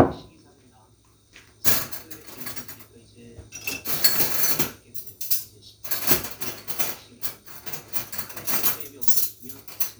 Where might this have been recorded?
in a kitchen